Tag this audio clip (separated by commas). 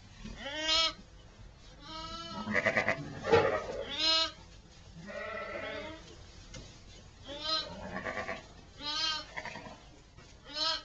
Sheep, Animal